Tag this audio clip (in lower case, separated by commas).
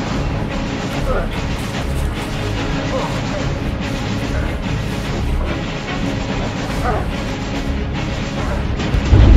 music, speech